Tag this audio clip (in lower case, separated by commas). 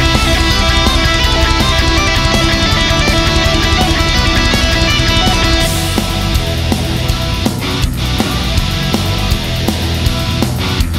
music, heavy metal